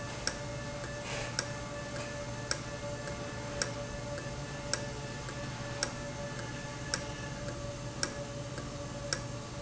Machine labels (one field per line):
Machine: valve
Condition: normal